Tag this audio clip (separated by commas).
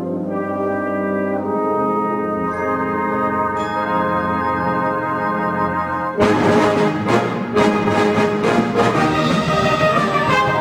inside a large room or hall, Orchestra, Music